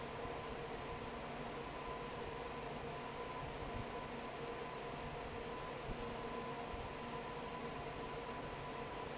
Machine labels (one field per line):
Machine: fan